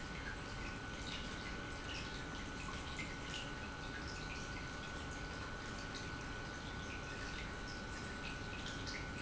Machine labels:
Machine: pump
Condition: normal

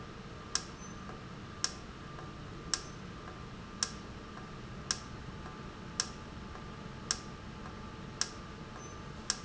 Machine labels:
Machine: valve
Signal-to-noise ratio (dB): 0 dB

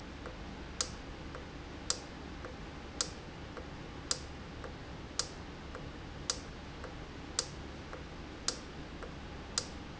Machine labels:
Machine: valve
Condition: normal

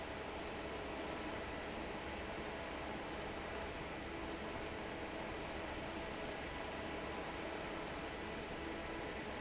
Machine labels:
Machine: fan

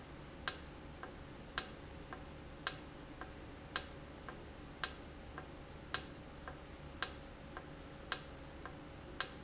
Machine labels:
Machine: valve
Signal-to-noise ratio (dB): 6 dB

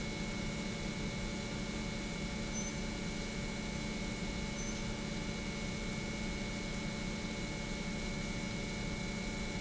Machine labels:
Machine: pump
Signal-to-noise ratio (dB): -6 dB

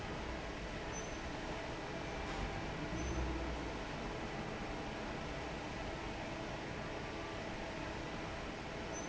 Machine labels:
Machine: fan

